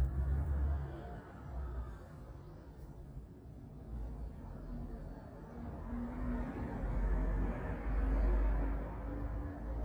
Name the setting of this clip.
residential area